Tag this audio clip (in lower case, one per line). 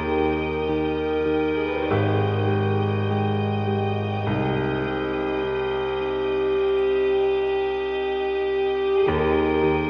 music